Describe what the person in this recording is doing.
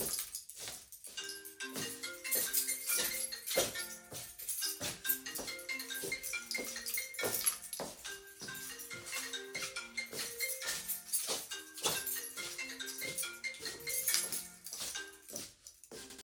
A person walked into my room holding their keychain, then got a call that they let ring while they kept walking around.